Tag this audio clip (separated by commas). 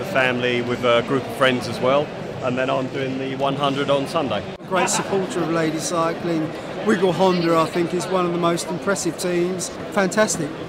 Speech